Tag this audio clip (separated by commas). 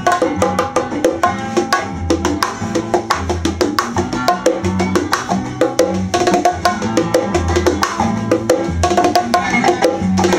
playing bongo